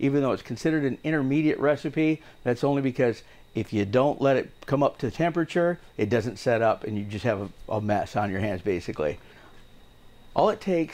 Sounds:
speech

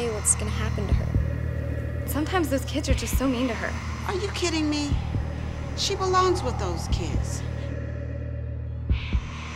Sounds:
music
speech

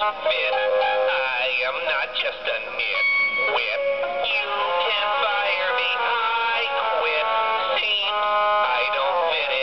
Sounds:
music

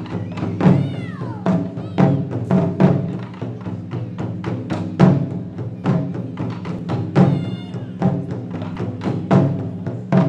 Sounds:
drum
percussion

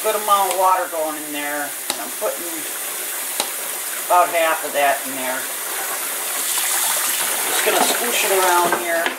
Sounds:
speech

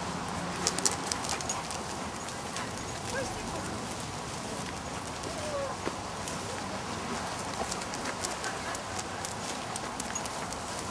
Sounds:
speech

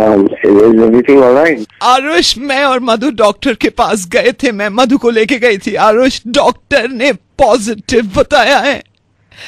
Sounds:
speech

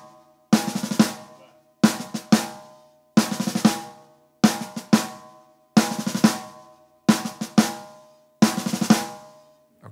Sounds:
playing snare drum

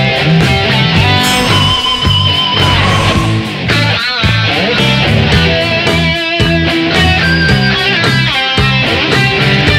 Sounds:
music

